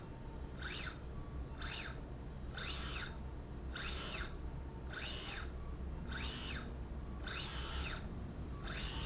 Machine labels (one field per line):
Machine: slide rail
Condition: normal